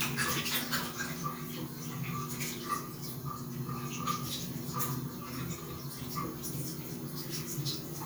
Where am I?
in a restroom